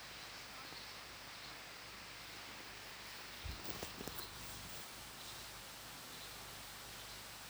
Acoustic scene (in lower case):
park